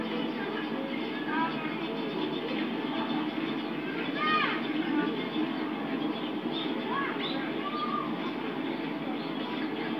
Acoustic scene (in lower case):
park